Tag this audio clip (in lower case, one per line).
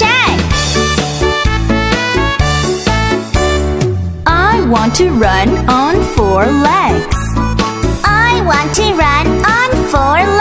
speech
music